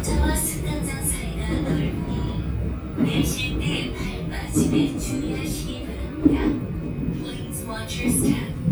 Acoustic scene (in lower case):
subway train